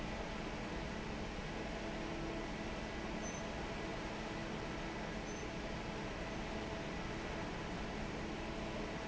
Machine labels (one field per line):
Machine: fan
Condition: normal